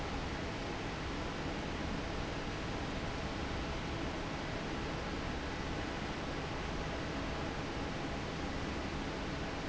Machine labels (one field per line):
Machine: fan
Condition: normal